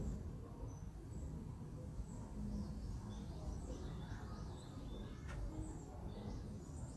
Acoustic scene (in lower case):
residential area